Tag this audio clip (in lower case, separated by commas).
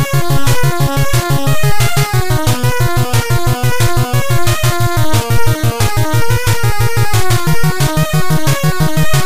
music